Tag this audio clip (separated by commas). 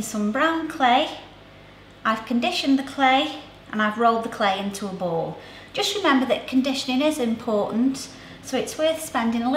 Speech